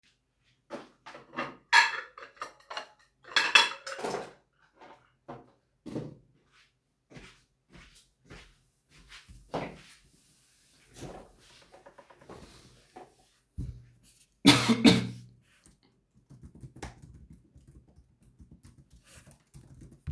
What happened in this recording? I put dishes on the table, walk to my laptop, make a cough sound and then start typing on the laptop.